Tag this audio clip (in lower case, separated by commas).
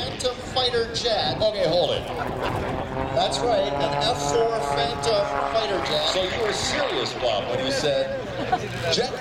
speech, bus, accelerating, vehicle